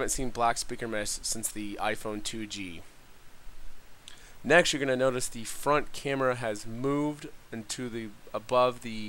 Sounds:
speech

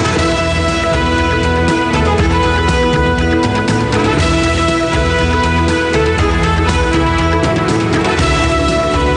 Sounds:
music

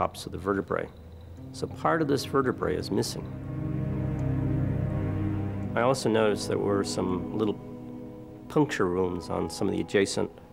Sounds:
music, speech

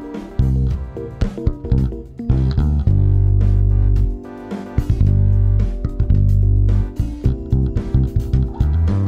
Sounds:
musical instrument, music, bass guitar, guitar, plucked string instrument

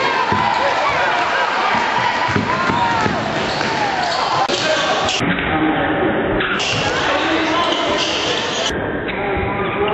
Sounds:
basketball bounce, speech

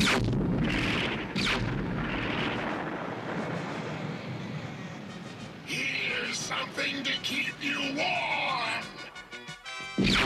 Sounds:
speech, music

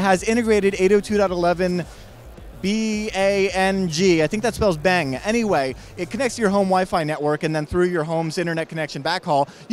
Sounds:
speech

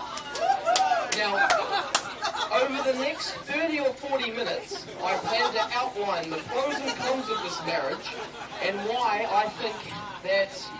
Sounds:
man speaking, speech

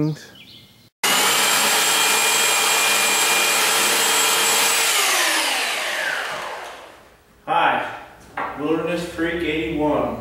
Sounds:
tools, speech

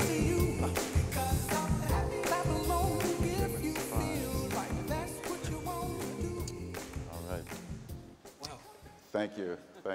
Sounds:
music, conversation, man speaking, speech

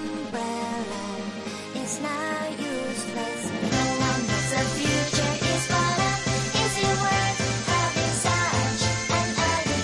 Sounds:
pop music, music

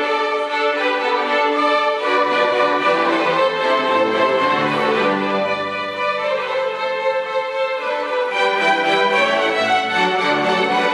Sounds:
music, orchestra

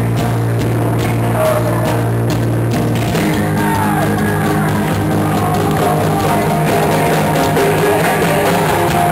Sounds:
inside a large room or hall, singing, music

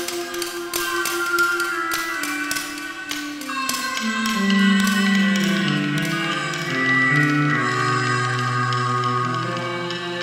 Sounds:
music, sound effect

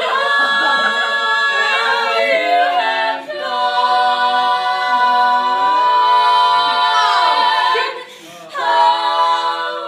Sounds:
speech

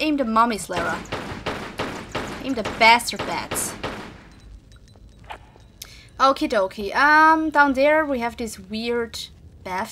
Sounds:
speech

